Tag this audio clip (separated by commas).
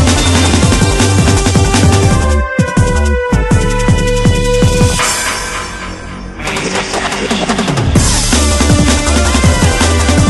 Music